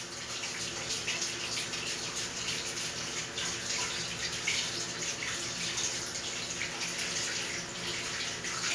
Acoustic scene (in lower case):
restroom